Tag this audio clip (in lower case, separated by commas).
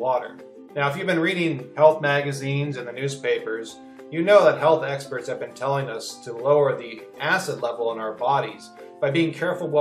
speech, music